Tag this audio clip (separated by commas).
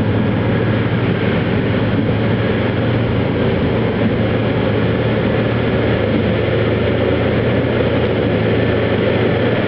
Vehicle, outside, rural or natural